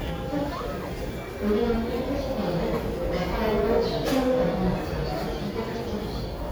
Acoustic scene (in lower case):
crowded indoor space